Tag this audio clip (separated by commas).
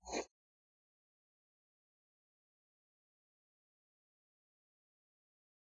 Writing, Domestic sounds